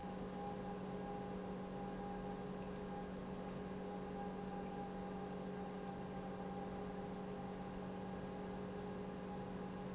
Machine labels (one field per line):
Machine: pump